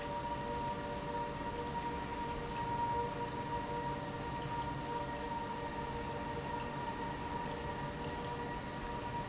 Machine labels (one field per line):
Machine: pump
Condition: normal